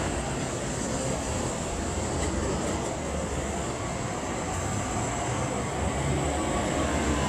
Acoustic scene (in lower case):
street